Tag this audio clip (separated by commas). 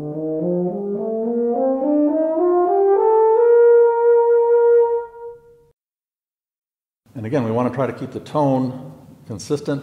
playing french horn